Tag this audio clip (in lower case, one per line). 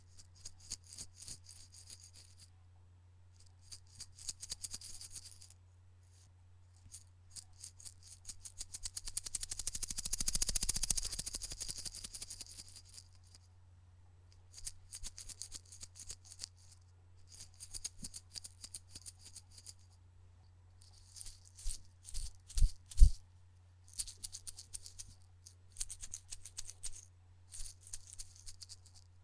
rattle